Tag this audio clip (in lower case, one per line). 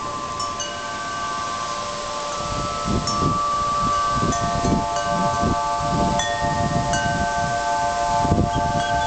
wind chime
chime